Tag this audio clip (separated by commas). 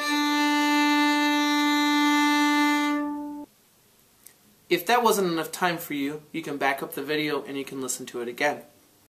Music, fiddle, Speech, Musical instrument